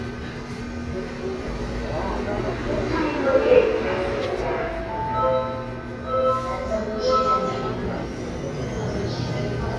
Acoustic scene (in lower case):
subway train